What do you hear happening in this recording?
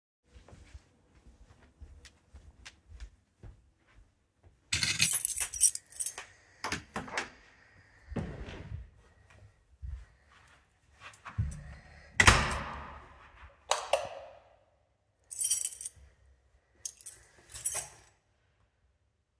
I walked to the door of my flat, took the key from the key holder, opened the door, stepped outside, closed the door, activated the light switch and put the keys into my pocket.